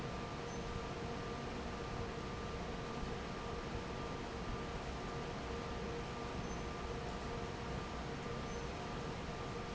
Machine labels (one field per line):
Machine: fan